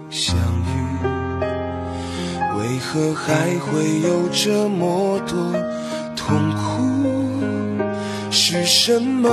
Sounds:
music

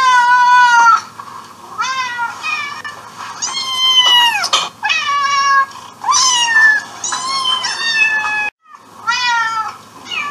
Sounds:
cat growling

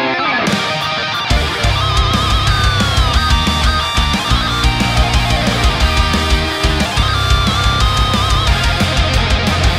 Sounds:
playing electric guitar

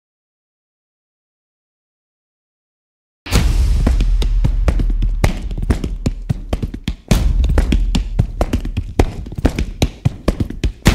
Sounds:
tap
music

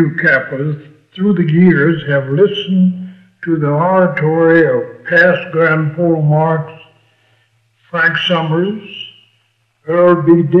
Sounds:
speech
speech synthesizer
monologue
male speech

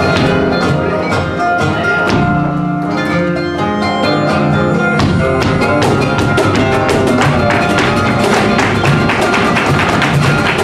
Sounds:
music
music of latin america

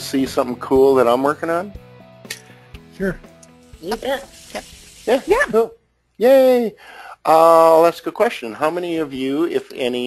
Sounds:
monologue
speech
music

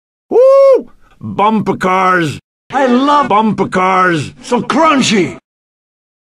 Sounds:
speech

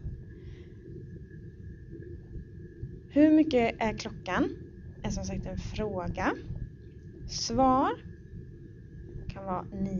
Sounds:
speech

